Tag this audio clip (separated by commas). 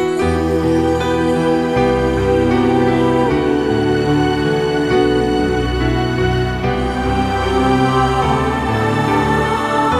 Music